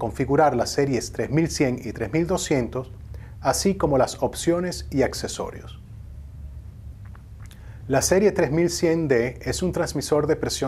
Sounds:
speech

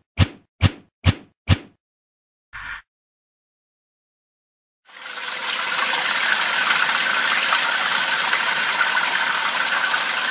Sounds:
water, water tap

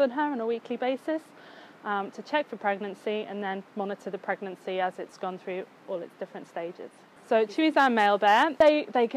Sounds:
speech

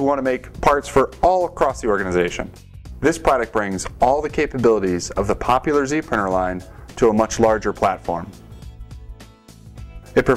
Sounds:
music, speech

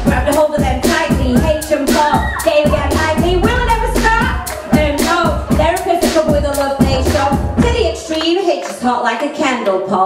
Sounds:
rapping

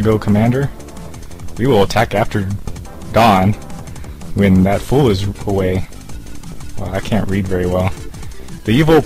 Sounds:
music, speech

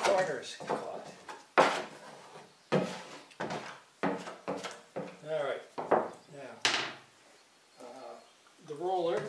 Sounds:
speech, wood

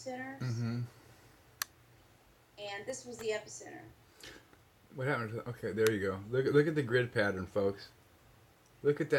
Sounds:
speech

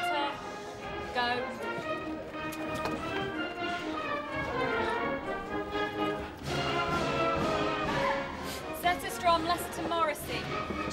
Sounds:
speech, music, opera

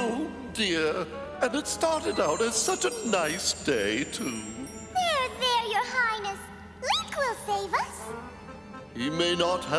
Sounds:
music, speech

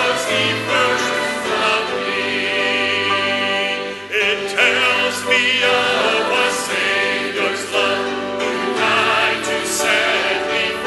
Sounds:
music, choir, male singing

